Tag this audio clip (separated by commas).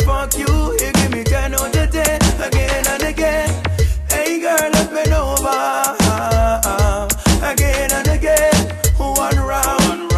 Reggae, Rapping, Hip hop music